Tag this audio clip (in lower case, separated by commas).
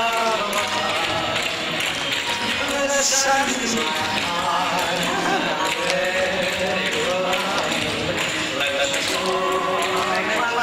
music